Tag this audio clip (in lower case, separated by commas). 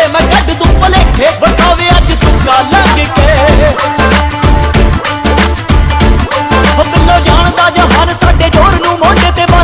music